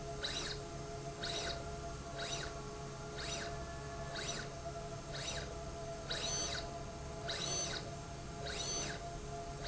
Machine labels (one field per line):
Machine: slide rail